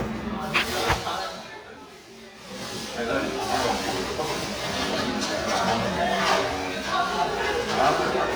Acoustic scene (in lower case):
crowded indoor space